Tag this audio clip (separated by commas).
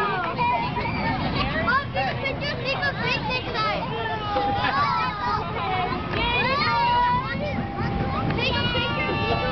Speech